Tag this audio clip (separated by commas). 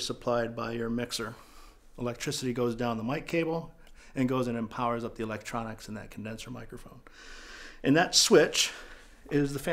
Speech